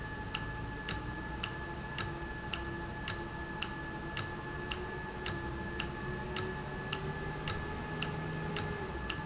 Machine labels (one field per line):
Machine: valve